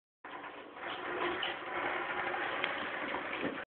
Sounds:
skateboard

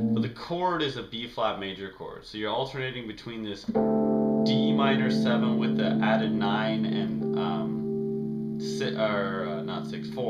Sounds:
speech
musical instrument
keyboard (musical)
piano
music
inside a small room

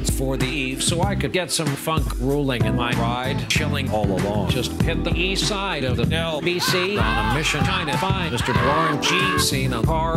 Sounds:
rapping

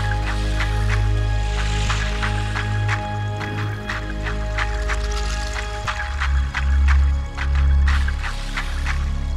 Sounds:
music
gurgling

